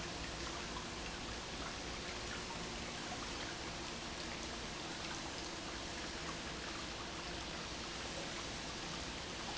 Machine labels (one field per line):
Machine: pump